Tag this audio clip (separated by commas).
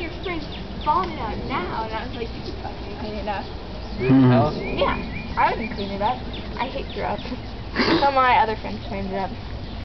Speech